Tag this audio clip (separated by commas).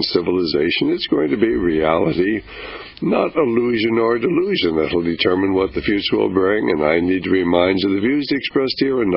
Speech